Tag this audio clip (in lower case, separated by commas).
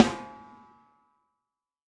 percussion, music, snare drum, musical instrument, drum